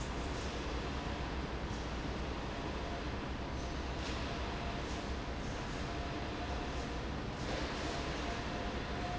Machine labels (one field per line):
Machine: fan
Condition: normal